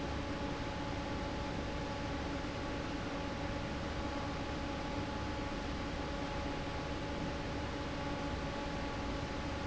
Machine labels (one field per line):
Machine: fan